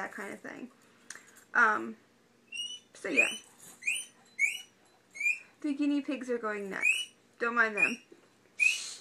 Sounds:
Speech, inside a small room

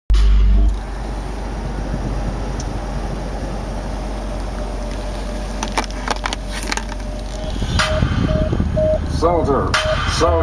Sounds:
Car, Speech, Vehicle

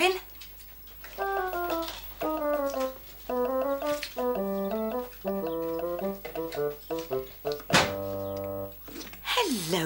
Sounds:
Speech, Music

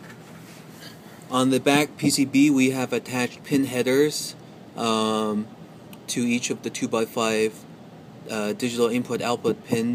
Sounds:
Speech

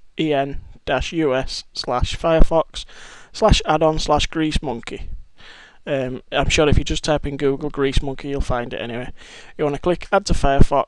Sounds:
Speech

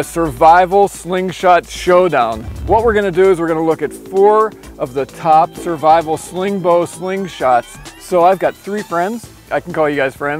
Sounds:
Music, Speech

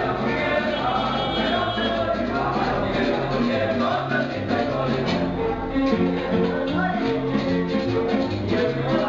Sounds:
Music, Speech

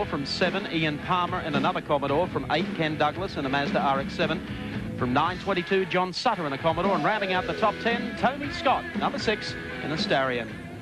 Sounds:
Music, Speech

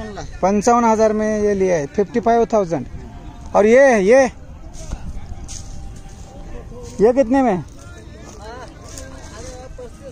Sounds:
bull bellowing

